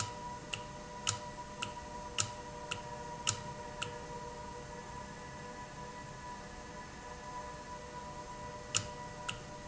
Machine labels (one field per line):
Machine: valve